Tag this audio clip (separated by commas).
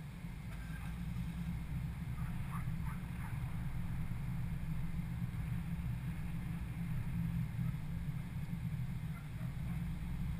Vehicle, Car